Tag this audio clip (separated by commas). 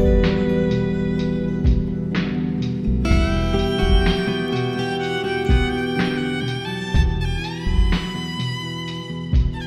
Music, Steel guitar